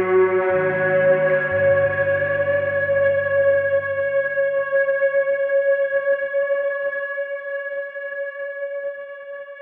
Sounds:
Music, inside a small room

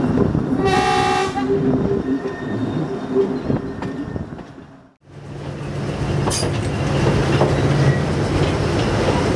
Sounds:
Toot, Train, Rail transport, Vehicle, train wagon

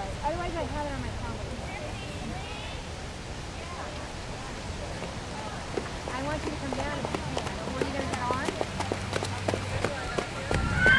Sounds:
Speech

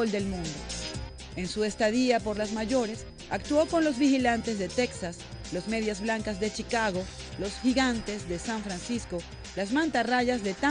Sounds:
Music, Speech

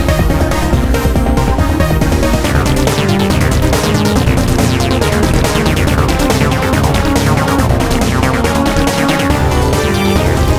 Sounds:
Music, Trance music

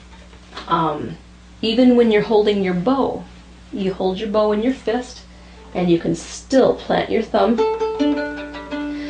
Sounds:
Bowed string instrument, Pizzicato, Violin

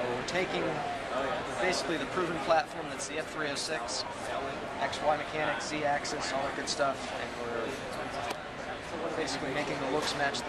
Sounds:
Speech

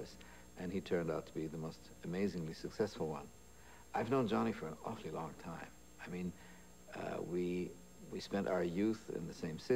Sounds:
man speaking, Narration, Speech

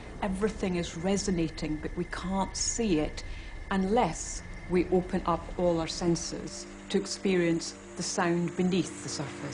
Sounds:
Speech

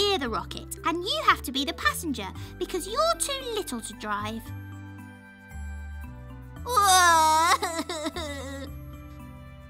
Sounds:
Speech, Music

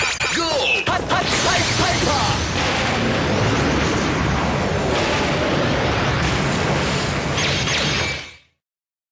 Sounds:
Music, Speech

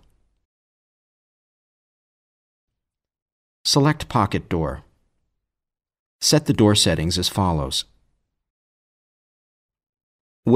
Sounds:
Speech

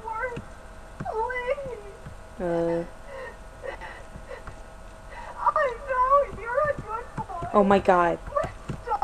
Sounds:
Speech

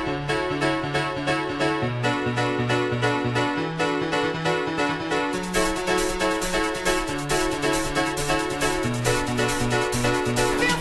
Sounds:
Music

